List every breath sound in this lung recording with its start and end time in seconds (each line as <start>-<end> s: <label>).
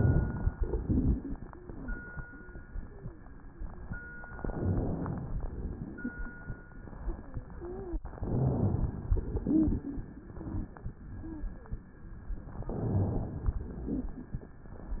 4.28-5.36 s: inhalation
7.57-8.07 s: wheeze
8.05-9.16 s: inhalation
9.14-10.94 s: exhalation
9.40-9.82 s: wheeze
10.32-10.70 s: wheeze
11.17-11.55 s: wheeze
12.49-13.60 s: inhalation
13.58-14.52 s: exhalation
13.64-14.26 s: rhonchi